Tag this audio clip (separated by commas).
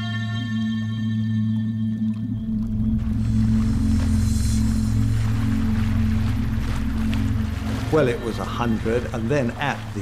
Music, outside, rural or natural, Speech